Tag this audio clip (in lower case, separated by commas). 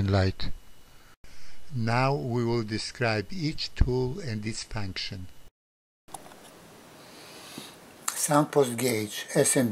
speech